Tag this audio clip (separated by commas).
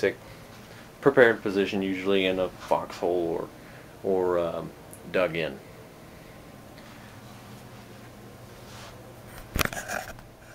Speech